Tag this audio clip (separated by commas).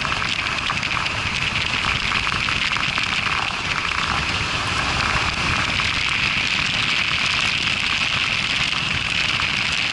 Bicycle, Vehicle